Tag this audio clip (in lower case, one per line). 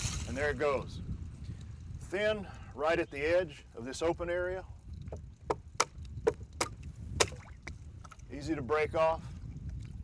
pumping water